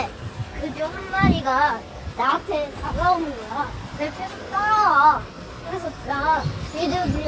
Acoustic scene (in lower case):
residential area